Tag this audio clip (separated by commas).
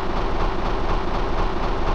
Engine, Idling